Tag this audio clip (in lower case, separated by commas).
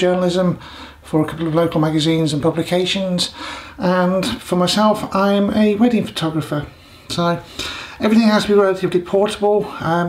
speech